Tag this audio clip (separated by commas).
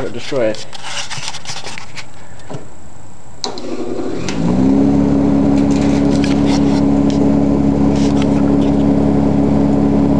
Speech